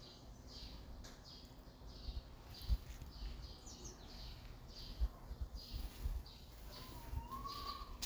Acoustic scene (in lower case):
park